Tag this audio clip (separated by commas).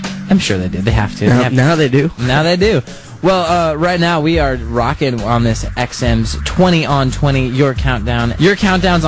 Music, Speech